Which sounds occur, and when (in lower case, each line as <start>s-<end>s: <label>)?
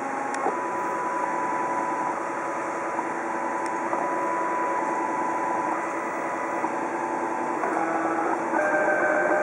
0.0s-9.4s: mechanisms